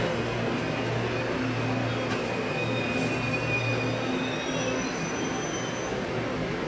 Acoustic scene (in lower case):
subway station